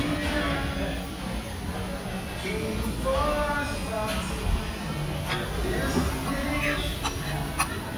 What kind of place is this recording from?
restaurant